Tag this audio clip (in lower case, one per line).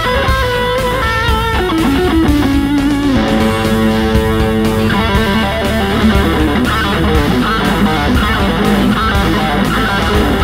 electric guitar
musical instrument
music
bass guitar
guitar